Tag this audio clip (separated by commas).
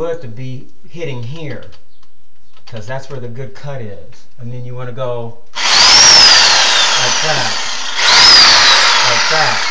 Speech